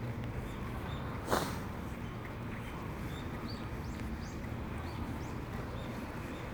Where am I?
in a residential area